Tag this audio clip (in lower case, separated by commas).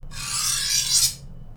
cutlery, home sounds